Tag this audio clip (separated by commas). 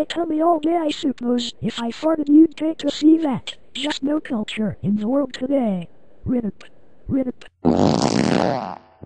Speech